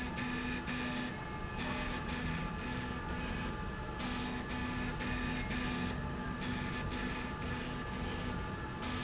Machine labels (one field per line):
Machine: slide rail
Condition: abnormal